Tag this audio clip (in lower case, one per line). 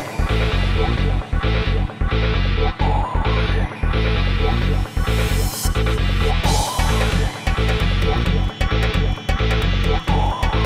music
soundtrack music